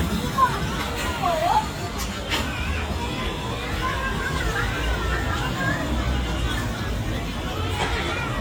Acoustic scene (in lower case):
park